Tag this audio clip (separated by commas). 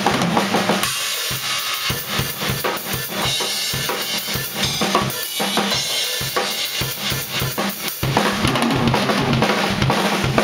Drum kit, Musical instrument, playing drum kit, Music, Drum